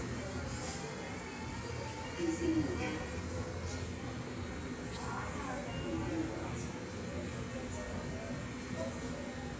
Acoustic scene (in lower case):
subway station